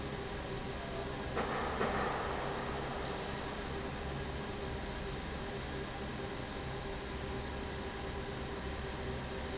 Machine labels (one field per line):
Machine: fan